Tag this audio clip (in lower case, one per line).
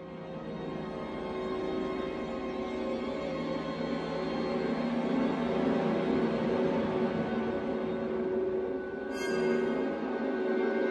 music